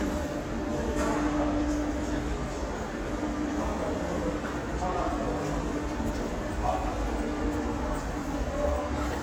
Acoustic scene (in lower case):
subway station